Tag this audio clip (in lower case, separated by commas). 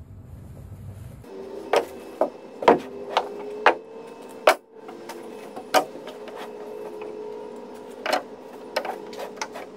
inside a small room, wood